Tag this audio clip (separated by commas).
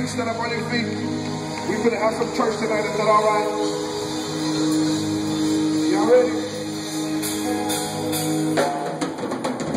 Speech, Music